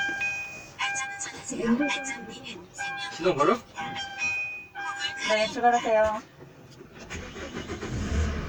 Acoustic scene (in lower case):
car